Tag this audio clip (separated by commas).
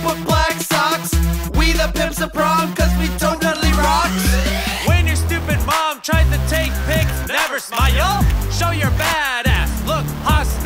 Music